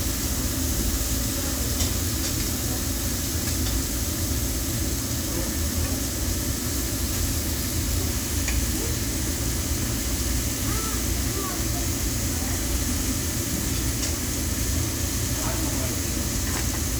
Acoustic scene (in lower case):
restaurant